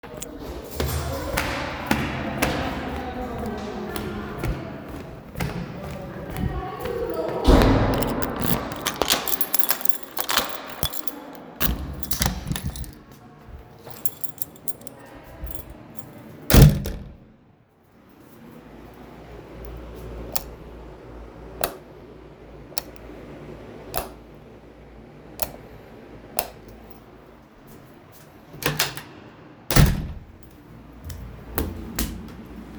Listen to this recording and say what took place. I walked in the hallway and searched for a key, I opened the door and then closed the door, I turned on and off the light and lastly again opened and clsed the door.